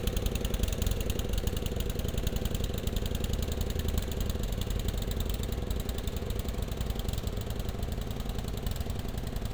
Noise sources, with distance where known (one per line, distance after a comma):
engine of unclear size, near